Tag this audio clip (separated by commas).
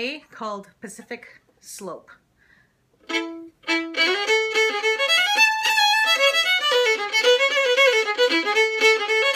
Music, fiddle, Speech, Musical instrument